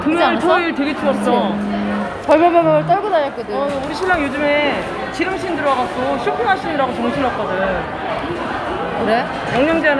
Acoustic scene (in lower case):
crowded indoor space